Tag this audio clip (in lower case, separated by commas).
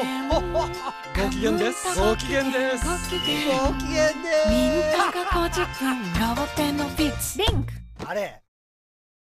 music, speech